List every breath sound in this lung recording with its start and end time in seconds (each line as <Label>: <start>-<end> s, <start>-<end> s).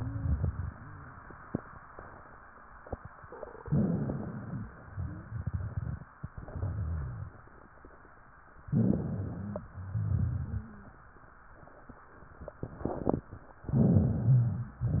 Inhalation: 3.65-4.70 s, 8.61-9.66 s, 13.70-14.76 s
Exhalation: 4.94-5.99 s, 9.84-10.89 s, 14.81-15.00 s
Wheeze: 0.00-0.40 s, 4.92-5.36 s, 14.81-15.00 s
Rhonchi: 3.67-4.65 s, 9.83-10.82 s, 13.64-14.63 s
Crackles: 8.68-9.67 s